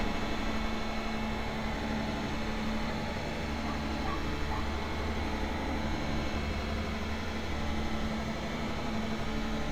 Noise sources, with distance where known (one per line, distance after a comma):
dog barking or whining, far